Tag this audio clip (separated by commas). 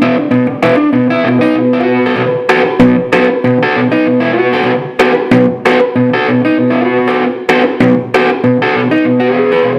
Music